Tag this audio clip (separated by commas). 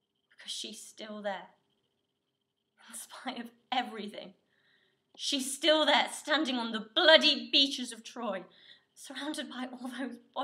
Narration, Speech